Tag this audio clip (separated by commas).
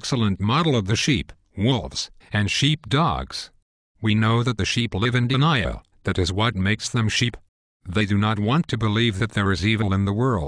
Speech